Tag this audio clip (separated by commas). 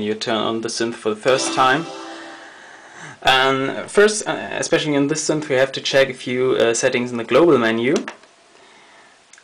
Speech, Music